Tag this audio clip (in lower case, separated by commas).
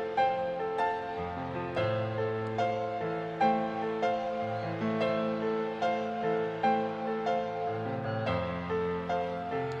music